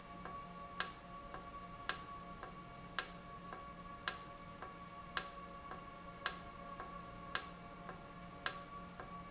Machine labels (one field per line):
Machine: valve